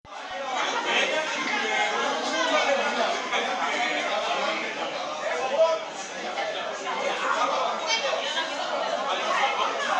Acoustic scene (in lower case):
restaurant